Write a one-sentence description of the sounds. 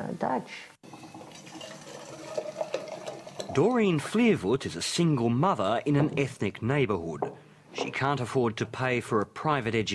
A woman speaks quickly followed by water pouring and a man speaks